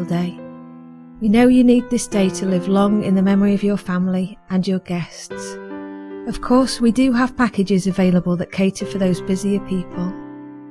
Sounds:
Music, Speech

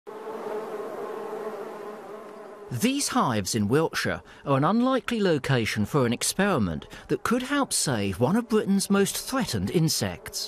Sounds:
housefly, Insect, bee or wasp

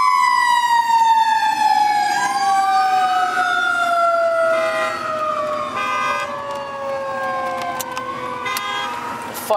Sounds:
Vehicle, Truck, Emergency vehicle, Speech, fire truck (siren)

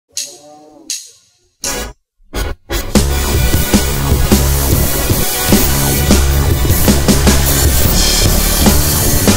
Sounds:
Music, Soundtrack music

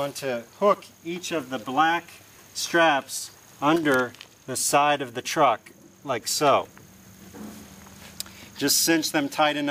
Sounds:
Speech

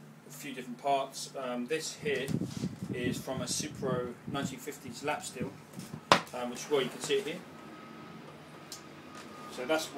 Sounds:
Speech

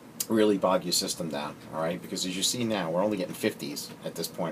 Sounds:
Speech

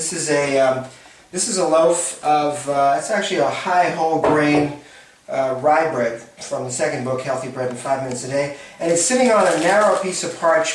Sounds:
Speech

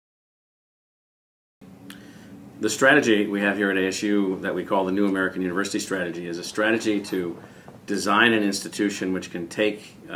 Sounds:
Speech

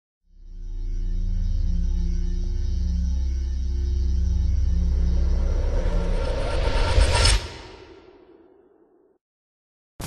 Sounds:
Music

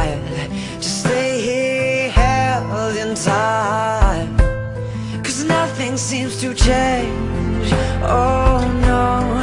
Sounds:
Music

